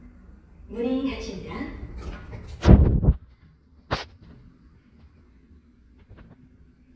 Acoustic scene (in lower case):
elevator